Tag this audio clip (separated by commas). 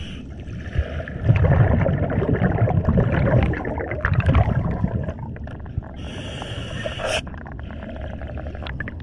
scuba diving